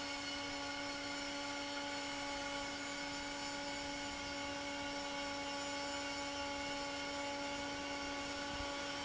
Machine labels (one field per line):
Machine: fan